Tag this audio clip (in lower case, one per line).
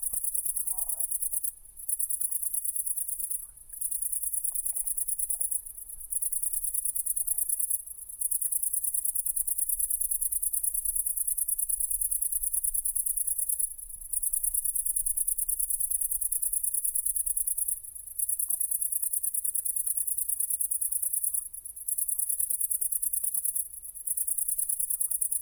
insect
cricket
wild animals
animal